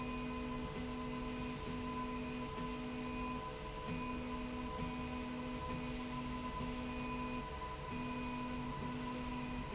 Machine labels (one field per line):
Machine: slide rail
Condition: normal